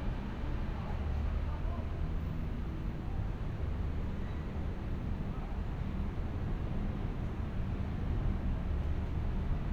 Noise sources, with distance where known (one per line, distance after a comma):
person or small group talking, far